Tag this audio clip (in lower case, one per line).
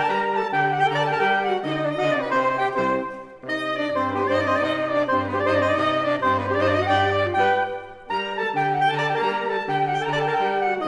brass instrument
saxophone
music
musical instrument